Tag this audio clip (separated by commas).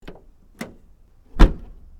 Domestic sounds, Vehicle, Car, Door, Motor vehicle (road), Slam